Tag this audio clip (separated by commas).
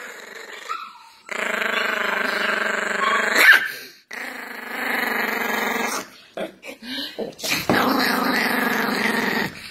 dog growling